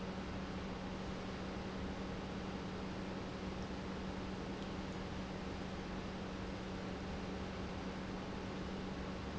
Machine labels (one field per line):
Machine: pump